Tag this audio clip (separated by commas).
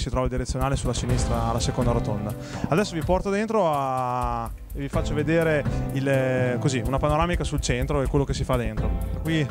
Music, Speech